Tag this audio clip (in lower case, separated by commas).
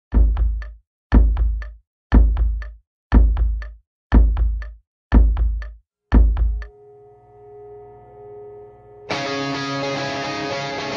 music